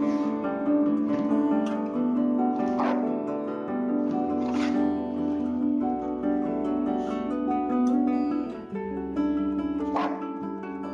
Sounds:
Music, Bow-wow, Dog, Domestic animals, Animal

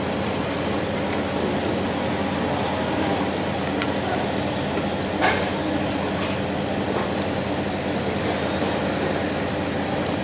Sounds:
Speech, inside a large room or hall, Wood

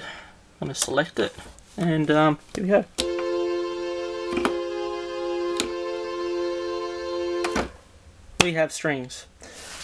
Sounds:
Music, Keyboard (musical), Musical instrument, Speech

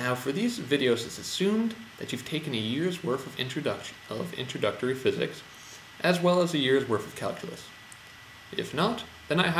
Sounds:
Speech

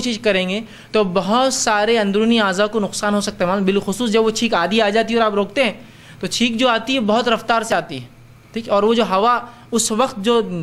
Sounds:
Speech

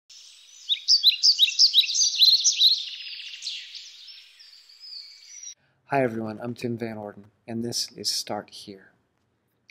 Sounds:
Chirp, Speech

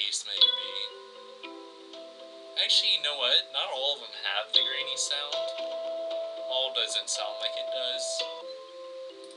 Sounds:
xylophone, Mallet percussion, Glockenspiel

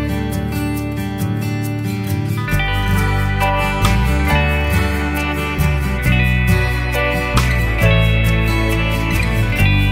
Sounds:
Music

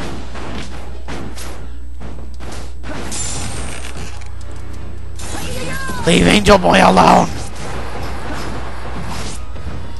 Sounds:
Music, Smash, Speech

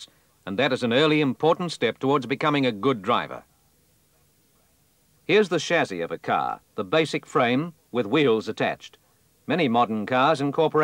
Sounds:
Speech

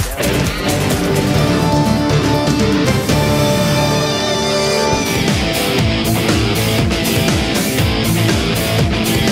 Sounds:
Music

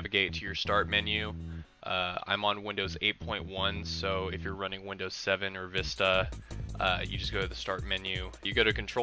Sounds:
Speech, Music

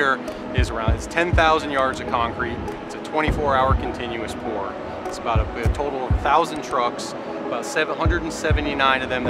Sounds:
Speech, Music, Trickle

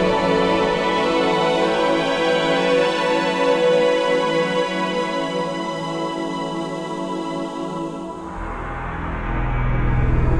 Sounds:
Music, New-age music

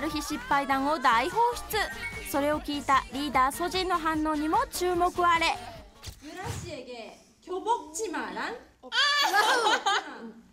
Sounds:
Speech, Music

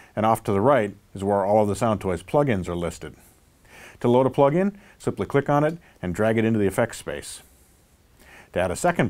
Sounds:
Speech

